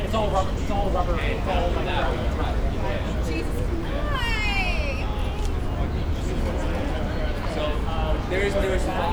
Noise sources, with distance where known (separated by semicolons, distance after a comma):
person or small group shouting, near